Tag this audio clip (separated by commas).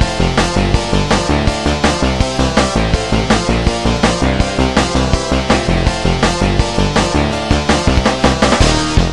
Video game music, Music